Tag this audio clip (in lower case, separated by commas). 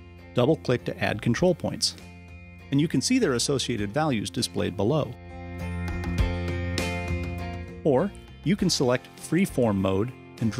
music, speech